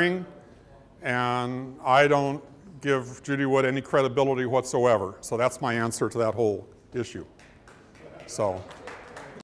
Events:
0.0s-0.3s: male speech
0.0s-9.4s: background noise
0.4s-0.9s: breathing
1.0s-2.4s: male speech
2.5s-2.7s: breathing
2.8s-6.6s: male speech
6.9s-7.3s: male speech
7.3s-9.4s: crowd
7.4s-9.4s: applause
8.0s-9.4s: laughter
8.2s-8.6s: male speech

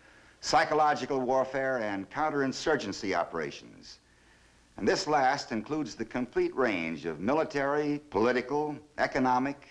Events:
0.0s-0.4s: breathing
0.0s-9.7s: background noise
0.4s-4.0s: man speaking
4.0s-4.7s: breathing
4.7s-8.0s: man speaking
8.1s-8.8s: man speaking
9.0s-9.7s: man speaking

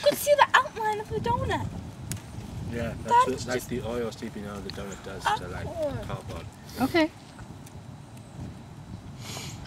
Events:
0.0s-1.7s: woman speaking
0.0s-7.1s: conversation
0.0s-9.6s: mechanisms
0.0s-9.6s: wind noise (microphone)
0.9s-0.9s: tick
2.1s-2.1s: tick
2.7s-2.9s: man speaking
3.1s-3.4s: woman speaking
3.3s-6.5s: man speaking
4.6s-4.7s: tick
5.2s-6.0s: animal
5.8s-5.8s: tick
6.8s-7.1s: woman speaking
7.6s-7.7s: tick
8.1s-8.2s: tick
9.2s-9.6s: sniff

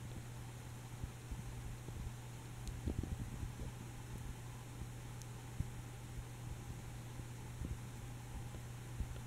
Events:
0.0s-9.2s: mechanisms
0.9s-2.1s: wind
2.6s-3.8s: wind
2.6s-2.7s: tick
4.8s-5.0s: generic impact sounds
5.2s-5.2s: tick
5.6s-5.7s: generic impact sounds
8.4s-8.6s: generic impact sounds
8.9s-9.1s: generic impact sounds

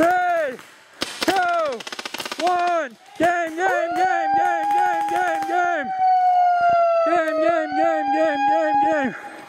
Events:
0.0s-0.5s: male speech
0.0s-0.6s: machine gun
0.0s-9.4s: wind
1.0s-2.8s: machine gun
1.3s-1.8s: male speech
2.4s-2.9s: male speech
3.2s-5.9s: male speech
3.5s-9.4s: police car (siren)
4.3s-5.4s: machine gun
6.2s-6.4s: wind noise (microphone)
6.6s-7.6s: wind noise (microphone)
7.0s-9.1s: male speech
9.1s-9.4s: breathing

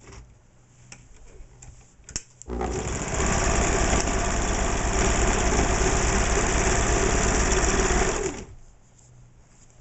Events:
0.0s-0.3s: generic impact sounds
0.0s-9.8s: background noise
0.8s-1.4s: generic impact sounds
1.6s-1.8s: generic impact sounds
2.0s-2.4s: generic impact sounds
2.4s-8.5s: sewing machine
8.6s-9.2s: generic impact sounds
9.4s-9.7s: generic impact sounds

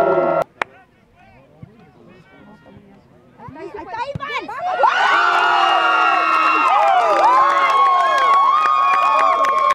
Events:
0.0s-0.4s: sound effect
0.0s-9.7s: wind
0.4s-0.4s: tick
0.5s-9.7s: crowd
0.6s-0.7s: tick
0.7s-3.1s: male speech
1.6s-1.7s: tick
2.4s-3.4s: female speech
3.4s-4.9s: kid speaking
4.1s-4.2s: generic impact sounds
4.1s-4.2s: tick
4.8s-4.8s: tick
4.8s-9.7s: shout
5.2s-9.7s: applause

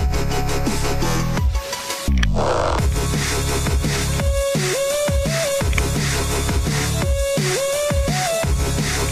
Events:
0.0s-9.1s: music

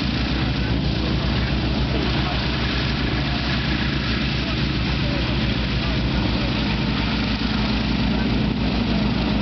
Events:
0.0s-9.4s: aircraft engine
1.1s-1.6s: human sounds
1.8s-2.8s: human sounds
4.3s-4.8s: human sounds
4.9s-6.9s: human sounds
8.8s-9.4s: human sounds

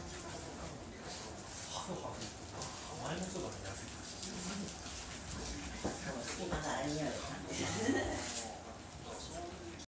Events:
0.0s-0.5s: human voice
0.0s-9.8s: mechanisms
0.1s-0.7s: surface contact
1.0s-1.9s: surface contact
1.7s-2.3s: man speaking
1.7s-9.8s: conversation
2.2s-2.2s: tick
2.5s-2.7s: tick
2.9s-3.5s: man speaking
3.0s-6.8s: dog
4.2s-4.7s: human voice
5.3s-5.8s: man speaking
5.7s-5.9s: tap
6.0s-7.3s: woman speaking
7.0s-8.5s: surface contact
7.4s-8.3s: laughter
8.3s-8.8s: man speaking
9.0s-9.8s: man speaking

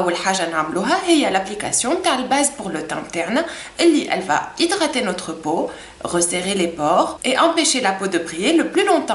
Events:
0.0s-3.5s: woman speaking
0.0s-9.1s: mechanisms
3.4s-3.7s: breathing
3.7s-4.4s: woman speaking
4.6s-5.7s: woman speaking
5.7s-5.9s: breathing
6.0s-7.1s: woman speaking
7.2s-9.1s: woman speaking

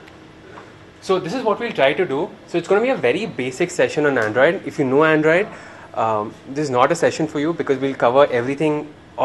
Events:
0.0s-9.2s: mechanisms
0.1s-0.2s: clapping
0.5s-0.7s: generic impact sounds
1.0s-2.4s: man speaking
2.5s-3.3s: man speaking
3.4s-4.6s: man speaking
4.2s-4.4s: generic impact sounds
4.7s-5.5s: man speaking
5.5s-5.9s: breathing
6.0s-6.4s: man speaking
6.5s-8.9s: man speaking

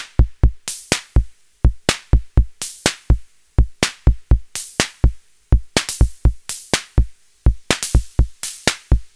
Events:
0.0s-9.1s: mechanisms
0.2s-1.3s: music
1.6s-3.2s: music
3.5s-5.2s: music
5.5s-7.0s: music
7.4s-9.1s: music

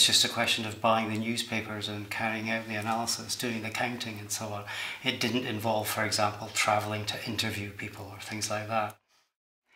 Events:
0.0s-9.4s: background noise
0.0s-9.0s: man speaking

